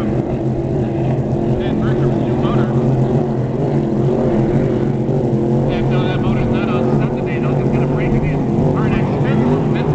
Motor boat traveling in water with human speech